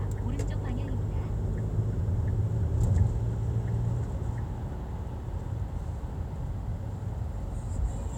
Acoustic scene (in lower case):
car